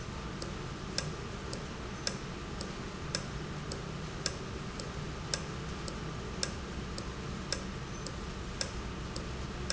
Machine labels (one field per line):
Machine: valve